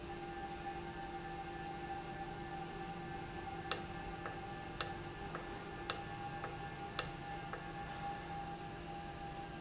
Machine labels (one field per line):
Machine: valve